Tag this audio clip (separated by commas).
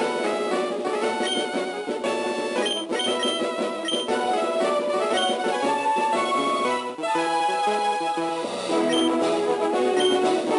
Music